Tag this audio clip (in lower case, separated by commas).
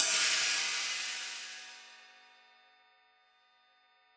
musical instrument, hi-hat, cymbal, music, percussion